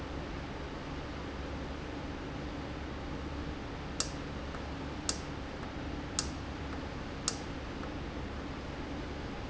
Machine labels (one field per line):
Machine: valve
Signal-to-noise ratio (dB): -6 dB